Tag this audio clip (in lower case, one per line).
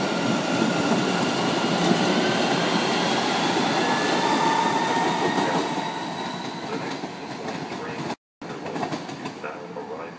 speech